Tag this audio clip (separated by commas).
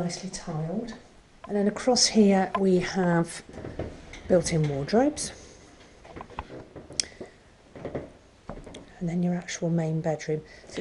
Speech, inside a large room or hall